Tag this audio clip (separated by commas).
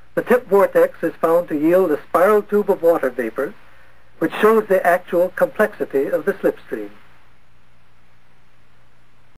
Speech